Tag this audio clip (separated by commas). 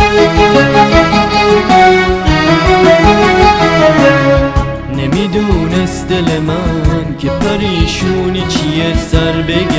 Independent music, Music